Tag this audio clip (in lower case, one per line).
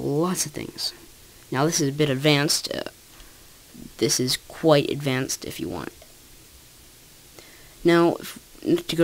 speech
monologue